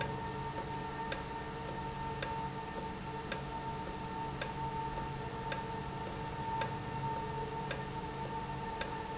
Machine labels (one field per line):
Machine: valve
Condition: normal